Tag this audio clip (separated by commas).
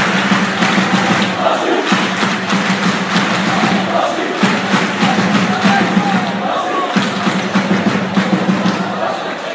Speech, inside a public space